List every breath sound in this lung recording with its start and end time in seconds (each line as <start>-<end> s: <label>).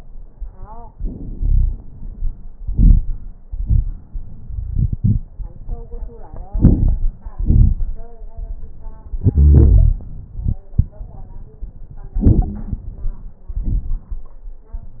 1.33-1.78 s: wheeze
2.62-3.07 s: inhalation
2.62-3.07 s: crackles
3.45-4.07 s: exhalation
3.45-4.07 s: crackles
6.53-7.15 s: inhalation
6.53-7.15 s: crackles
7.37-8.10 s: exhalation
7.37-8.10 s: crackles
9.20-10.04 s: wheeze
12.13-12.94 s: inhalation
12.13-12.94 s: crackles
13.48-14.30 s: exhalation
13.48-14.30 s: crackles